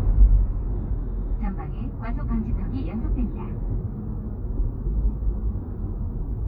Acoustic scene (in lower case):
car